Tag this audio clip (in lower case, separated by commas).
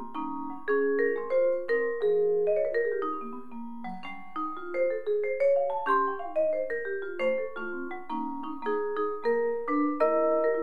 playing vibraphone